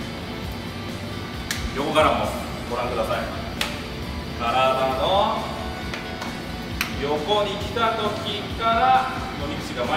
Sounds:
bowling impact

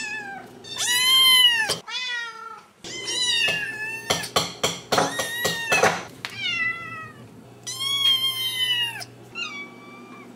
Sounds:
cat caterwauling

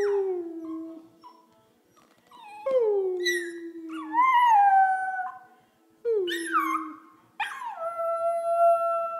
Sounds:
dog, domestic animals, howl, animal

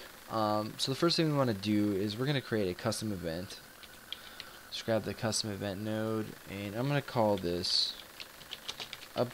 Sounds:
speech

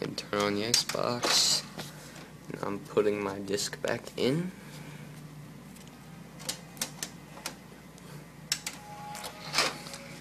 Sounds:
inside a small room, speech

